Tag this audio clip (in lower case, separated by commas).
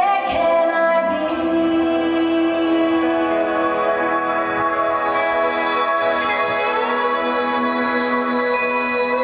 inside a large room or hall, singing, music